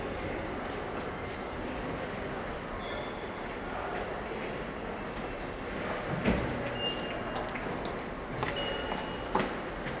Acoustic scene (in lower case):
subway station